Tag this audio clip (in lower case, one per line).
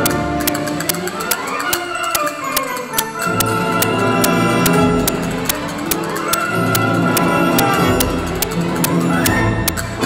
playing castanets